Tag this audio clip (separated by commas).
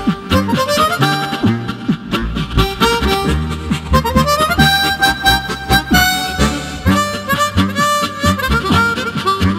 playing harmonica